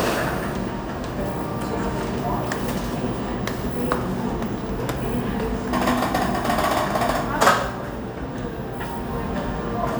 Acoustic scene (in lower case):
cafe